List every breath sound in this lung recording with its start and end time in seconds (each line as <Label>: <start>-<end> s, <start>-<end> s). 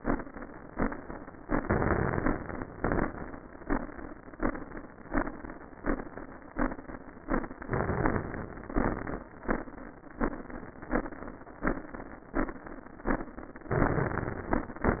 Inhalation: 1.59-2.33 s, 7.66-8.72 s, 13.72-14.50 s
Exhalation: 2.35-3.10 s, 8.76-9.25 s, 14.57-15.00 s
Crackles: 1.59-2.33 s, 2.35-3.10 s, 8.76-9.25 s